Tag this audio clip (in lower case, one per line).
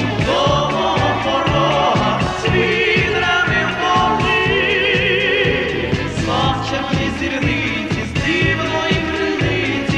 music
traditional music